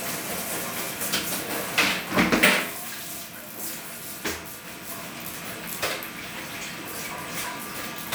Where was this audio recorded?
in a restroom